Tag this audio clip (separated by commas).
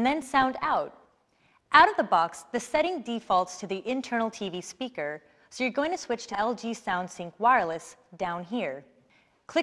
Speech